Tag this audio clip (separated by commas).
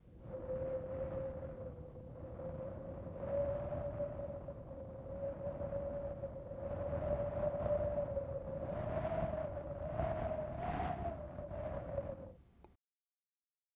Wind